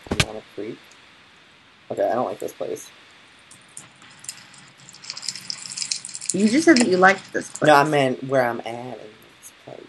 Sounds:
Speech, inside a small room

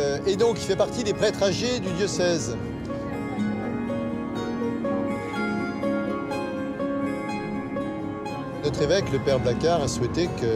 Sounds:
Music, Speech

